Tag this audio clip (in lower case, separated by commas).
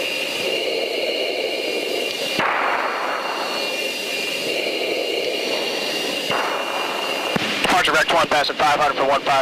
speech